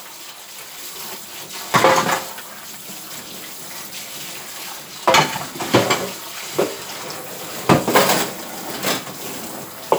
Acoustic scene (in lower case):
kitchen